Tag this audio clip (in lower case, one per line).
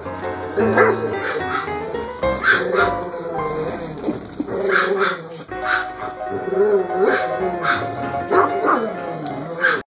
dog
animal
domestic animals
canids
music